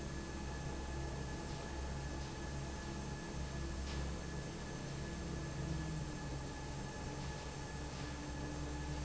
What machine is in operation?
fan